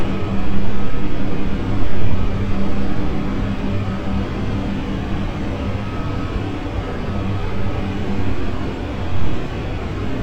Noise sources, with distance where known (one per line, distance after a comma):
large-sounding engine
reverse beeper